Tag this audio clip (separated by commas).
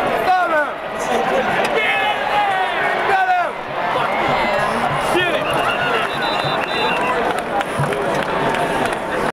Speech